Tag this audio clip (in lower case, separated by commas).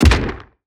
explosion, gunshot